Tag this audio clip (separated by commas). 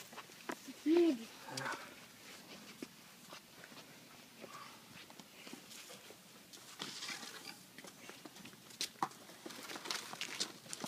Speech, outside, urban or man-made